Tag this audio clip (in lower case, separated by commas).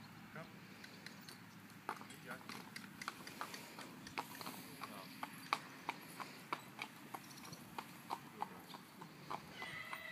horse clip-clop